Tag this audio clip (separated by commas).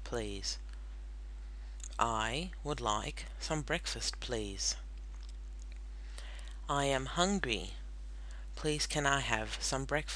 Speech